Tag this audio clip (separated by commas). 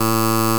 Alarm